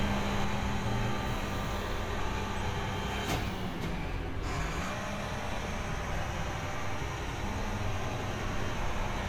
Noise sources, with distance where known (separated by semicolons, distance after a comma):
large-sounding engine, near